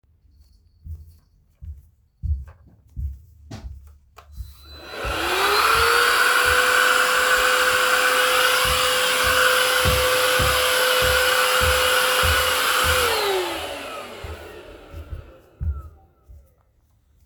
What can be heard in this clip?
footsteps, vacuum cleaner